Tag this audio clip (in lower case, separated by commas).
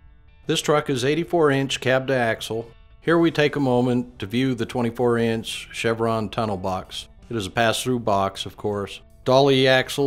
music, speech